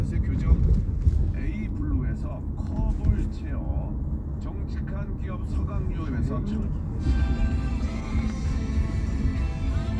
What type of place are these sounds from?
car